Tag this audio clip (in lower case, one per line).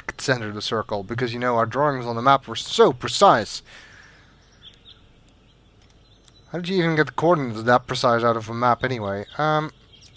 environmental noise